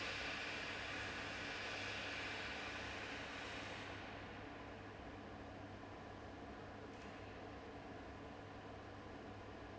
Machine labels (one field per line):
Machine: fan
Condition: abnormal